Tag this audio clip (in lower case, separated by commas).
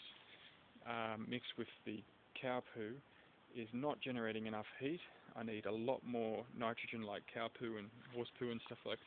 speech